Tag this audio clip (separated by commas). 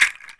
Music, Musical instrument, Percussion, Rattle (instrument)